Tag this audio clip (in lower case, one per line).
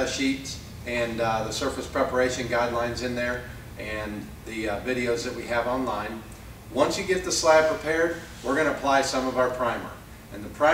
speech